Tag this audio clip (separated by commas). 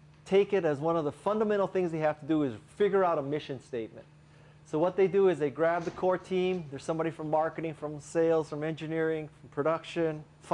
Speech